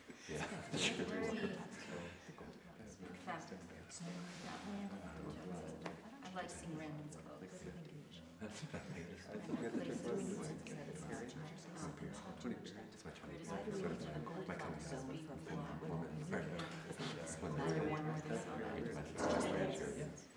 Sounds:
human group actions, chatter

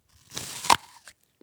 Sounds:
mastication

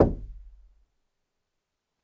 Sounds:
door, knock, home sounds

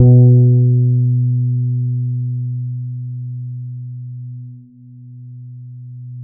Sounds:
plucked string instrument, music, guitar, musical instrument, bass guitar

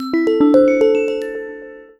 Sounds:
ringtone, telephone, alarm

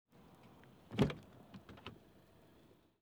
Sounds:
vehicle, motor vehicle (road), car

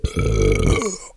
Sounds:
burping

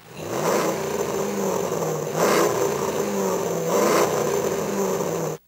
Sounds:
engine

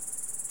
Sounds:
wild animals, cricket, animal, insect

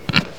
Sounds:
animal, livestock

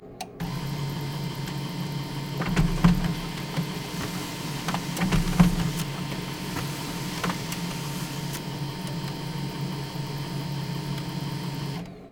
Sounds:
mechanisms, printer

